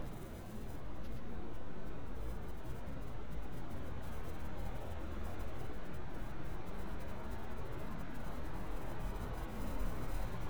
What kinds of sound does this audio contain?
background noise